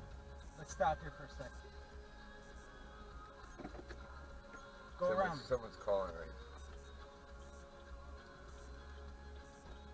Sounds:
Music, Speech

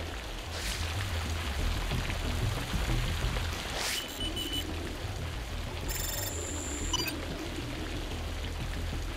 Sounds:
Raindrop, Music

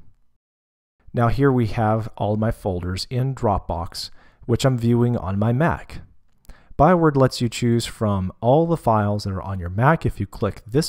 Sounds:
Speech

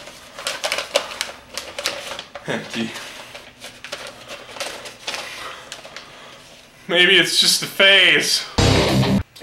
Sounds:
Speech, Music

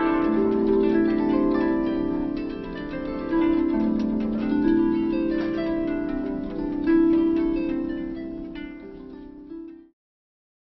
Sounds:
playing harp, Music, Musical instrument, Harp

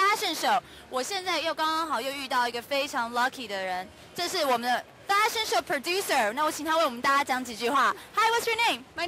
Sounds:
Speech

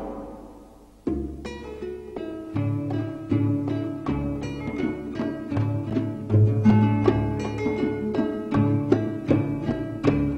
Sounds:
Music

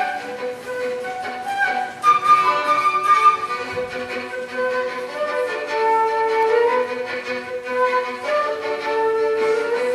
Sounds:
Musical instrument, Music, Violin, Flute

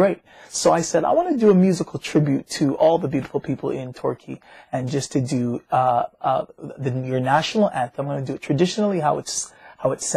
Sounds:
Speech

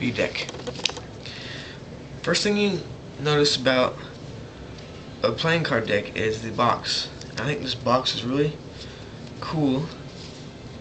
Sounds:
Speech

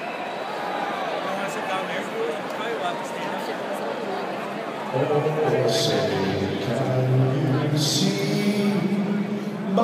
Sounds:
Speech, Male singing

